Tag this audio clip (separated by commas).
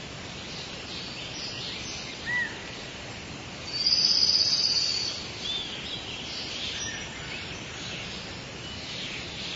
gibbon howling